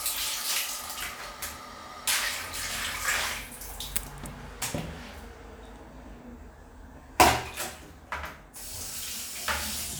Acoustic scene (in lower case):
restroom